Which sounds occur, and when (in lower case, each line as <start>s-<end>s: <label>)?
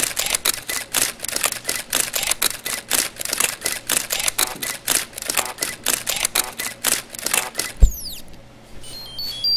0.0s-0.8s: camera
0.0s-9.5s: mechanisms
0.6s-0.7s: beep
0.9s-1.1s: camera
1.2s-1.5s: camera
1.6s-1.7s: beep
1.6s-1.8s: camera
1.9s-2.8s: camera
2.6s-2.7s: beep
2.9s-3.1s: camera
3.1s-3.8s: camera
3.6s-3.7s: beep
3.9s-4.7s: camera
4.3s-4.6s: human voice
4.6s-4.7s: beep
4.8s-5.0s: camera
5.1s-5.7s: camera
5.3s-5.5s: human voice
5.6s-5.7s: beep
5.8s-6.7s: camera
6.3s-6.5s: human voice
6.6s-6.7s: beep
6.8s-7.0s: camera
7.1s-8.3s: camera
7.3s-7.5s: human voice
7.5s-7.6s: beep
8.8s-9.5s: beep